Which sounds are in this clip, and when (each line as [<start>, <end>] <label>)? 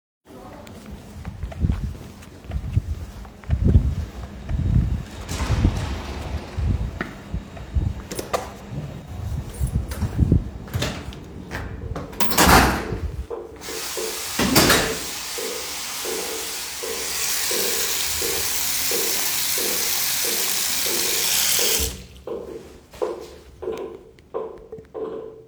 [0.69, 8.66] footsteps
[10.70, 10.78] door
[12.01, 13.19] door
[13.49, 22.02] running water
[14.39, 14.97] door